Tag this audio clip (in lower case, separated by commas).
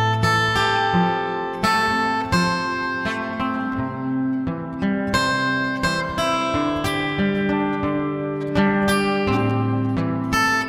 strum, acoustic guitar, musical instrument, plucked string instrument, guitar, music